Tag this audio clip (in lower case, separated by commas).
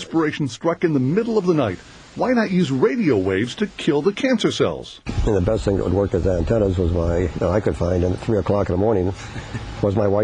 speech